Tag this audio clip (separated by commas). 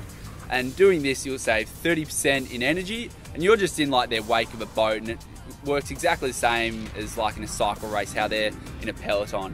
Speech, Music